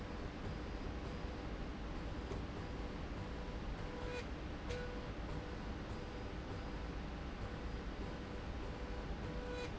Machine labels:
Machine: slide rail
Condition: normal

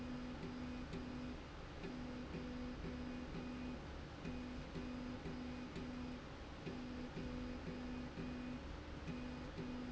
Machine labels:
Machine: slide rail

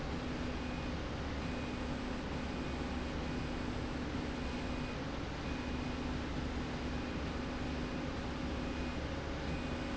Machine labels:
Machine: slide rail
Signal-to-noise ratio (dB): -6 dB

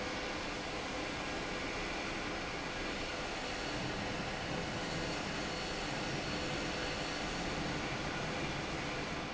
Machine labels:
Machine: fan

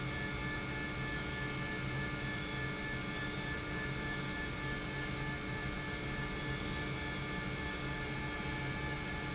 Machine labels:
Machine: pump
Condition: normal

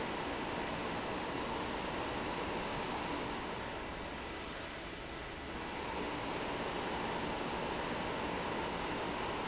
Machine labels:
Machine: fan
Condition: abnormal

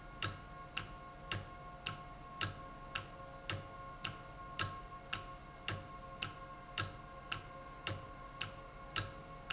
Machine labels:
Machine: valve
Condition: normal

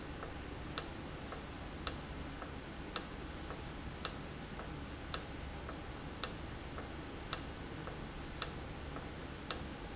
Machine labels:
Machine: valve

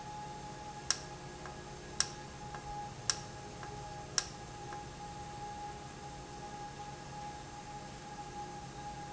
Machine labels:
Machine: valve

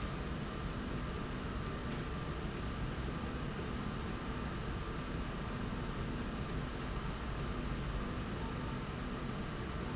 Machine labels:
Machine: slide rail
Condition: normal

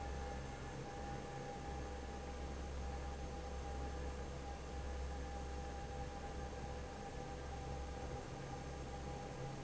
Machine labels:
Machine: fan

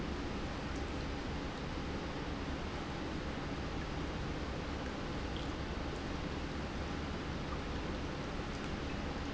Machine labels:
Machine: pump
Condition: normal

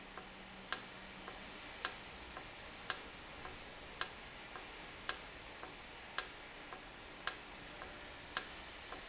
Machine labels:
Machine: valve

